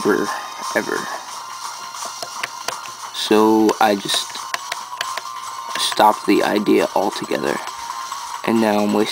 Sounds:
speech
music

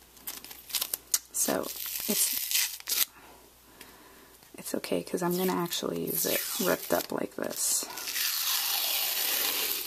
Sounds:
speech

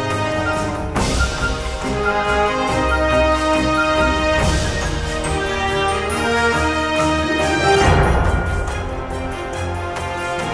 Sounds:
music

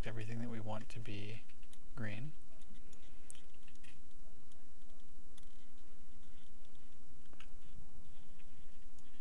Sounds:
speech

